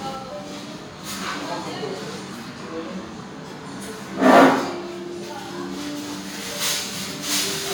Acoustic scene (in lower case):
restaurant